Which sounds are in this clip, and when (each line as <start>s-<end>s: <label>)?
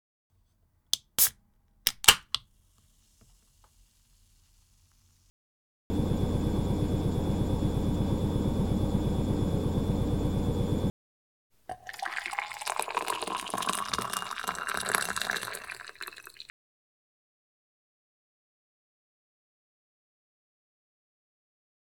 5.8s-11.0s: coffee machine
5.9s-10.9s: microwave
11.5s-16.6s: running water